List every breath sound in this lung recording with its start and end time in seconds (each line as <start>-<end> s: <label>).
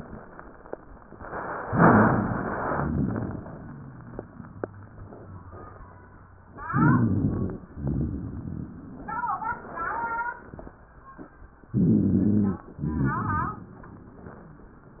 6.49-7.59 s: inhalation
6.49-7.59 s: rhonchi
7.77-9.22 s: rhonchi
7.77-10.76 s: exhalation
11.71-12.67 s: inhalation
11.71-12.67 s: rhonchi
12.77-13.72 s: rhonchi
12.77-15.00 s: exhalation